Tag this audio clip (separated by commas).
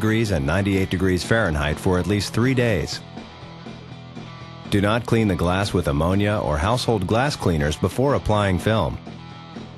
Speech, Music